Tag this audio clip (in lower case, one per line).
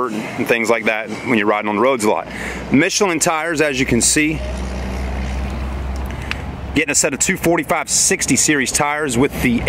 vehicle
speech
motor vehicle (road)